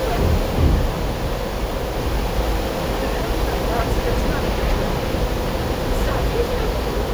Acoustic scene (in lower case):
bus